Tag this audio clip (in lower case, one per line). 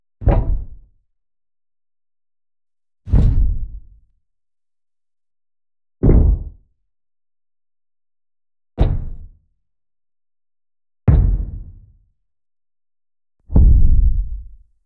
thud